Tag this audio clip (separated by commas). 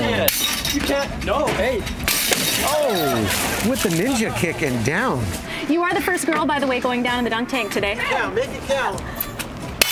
Speech, Music